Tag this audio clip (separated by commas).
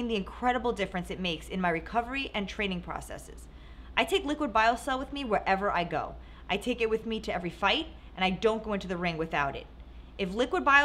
Speech